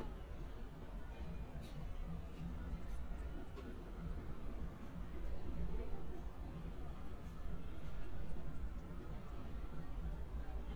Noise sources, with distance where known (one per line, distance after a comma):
background noise